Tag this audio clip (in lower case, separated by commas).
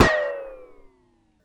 explosion, gunfire